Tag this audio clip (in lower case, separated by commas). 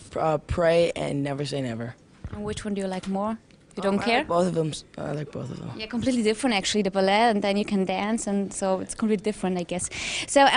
speech